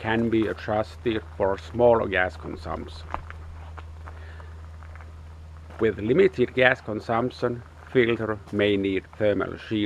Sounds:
speech, outside, rural or natural

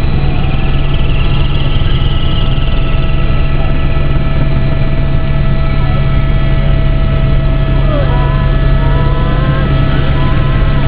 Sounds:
speech

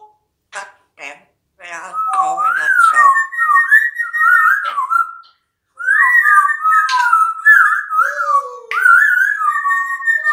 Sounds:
parrot talking

